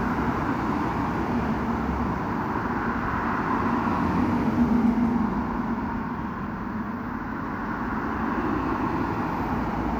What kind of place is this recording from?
street